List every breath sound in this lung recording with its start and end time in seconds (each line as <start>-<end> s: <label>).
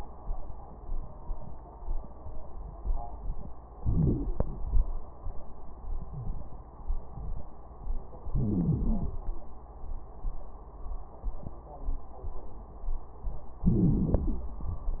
3.74-4.49 s: crackles
3.78-4.49 s: inhalation
4.53-5.19 s: exhalation
4.53-5.19 s: crackles
8.26-9.16 s: inhalation
8.26-9.16 s: crackles
13.64-14.54 s: inhalation
13.64-14.54 s: crackles